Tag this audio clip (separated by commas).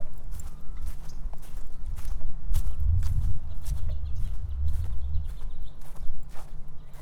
Walk